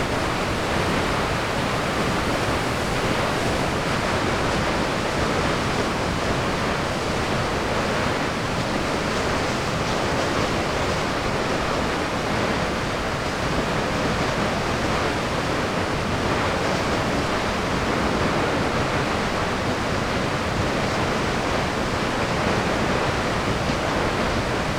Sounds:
water

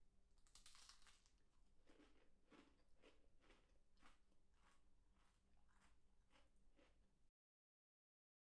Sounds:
mastication

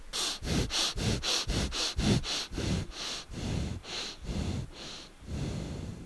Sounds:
breathing
respiratory sounds

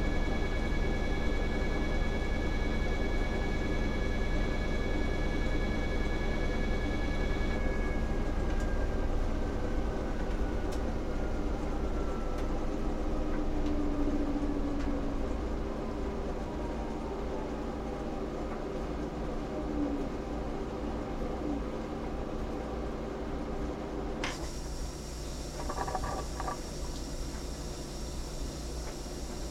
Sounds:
engine

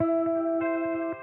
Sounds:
musical instrument
guitar
plucked string instrument
music
electric guitar

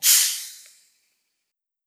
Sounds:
hiss

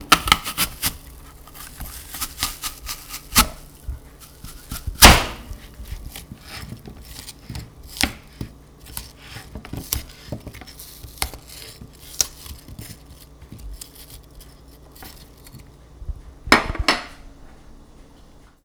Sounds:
domestic sounds

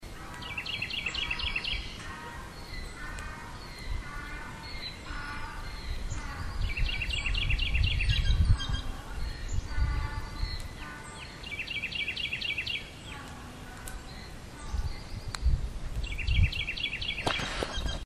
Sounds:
bird song
bird
wild animals
chirp
animal

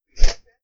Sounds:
swoosh

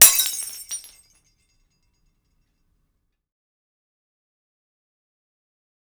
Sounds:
shatter
glass

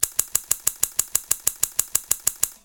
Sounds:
scissors
home sounds

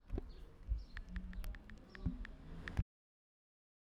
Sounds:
home sounds
animal
wild animals
bird song
car
vehicle
typing
human group actions
motor vehicle (road)
bird
chirp
car passing by
chatter

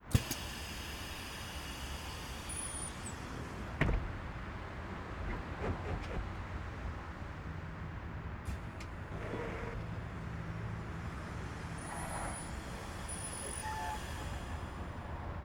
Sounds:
motor vehicle (road)
vehicle
bus

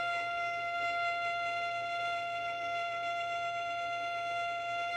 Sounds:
music
musical instrument
bowed string instrument

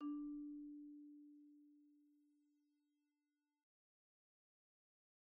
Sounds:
xylophone
percussion
musical instrument
music
mallet percussion

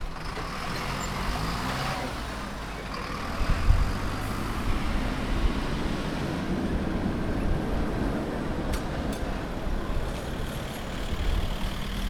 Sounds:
motor vehicle (road)
traffic noise
vehicle

